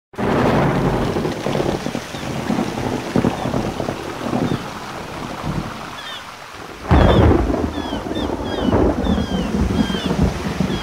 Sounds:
Rain

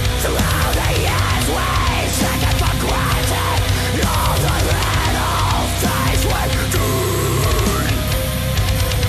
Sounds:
Music

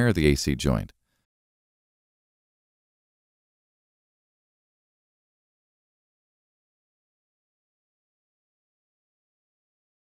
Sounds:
Speech

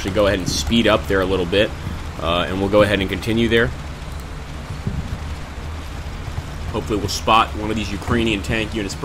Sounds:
Speech

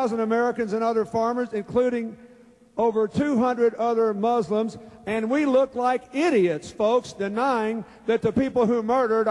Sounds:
Speech

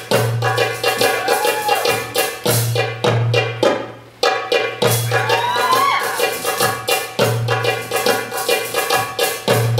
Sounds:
Maraca, Tambourine, Music

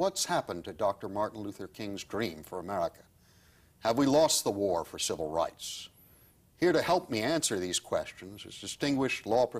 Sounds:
Speech

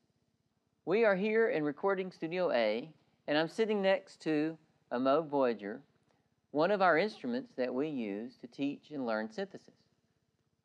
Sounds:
Speech

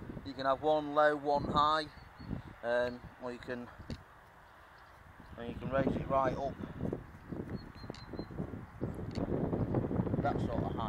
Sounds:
Wind noise (microphone), Wind

